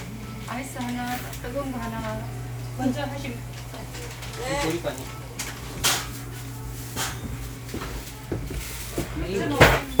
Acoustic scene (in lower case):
cafe